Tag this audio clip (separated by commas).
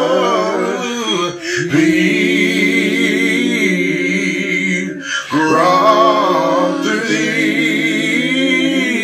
Male singing